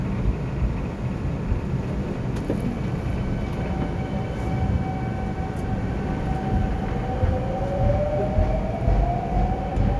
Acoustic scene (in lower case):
subway station